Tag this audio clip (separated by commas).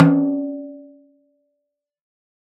Musical instrument, Snare drum, Drum, Music, Percussion